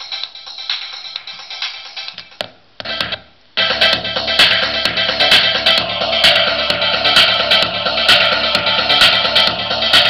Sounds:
Music

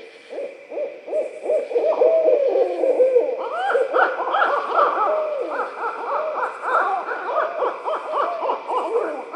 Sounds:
owl hooting

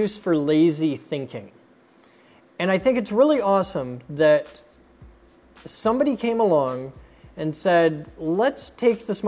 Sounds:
Speech, Music

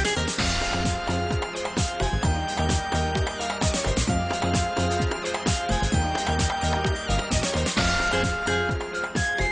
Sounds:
Music

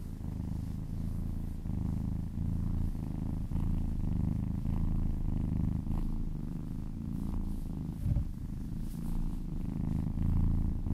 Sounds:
cat purring

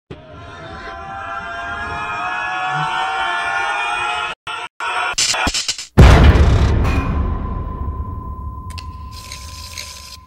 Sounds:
Music

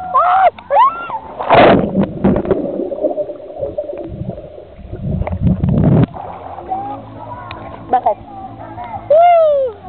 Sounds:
Speech

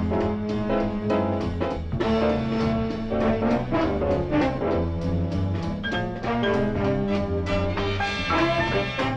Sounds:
Music

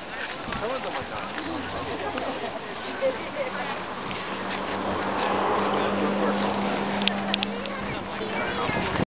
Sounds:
Speech

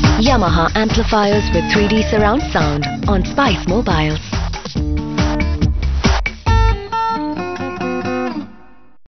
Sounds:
Music, Speech

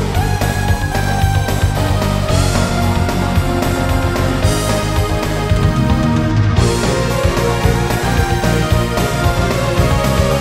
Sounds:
Funk, Music

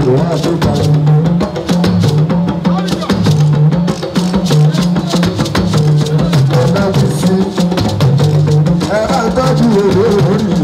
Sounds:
Music

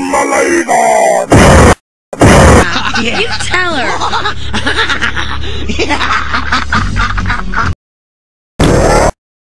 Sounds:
Speech

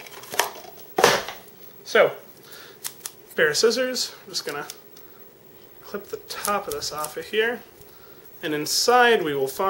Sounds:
Speech

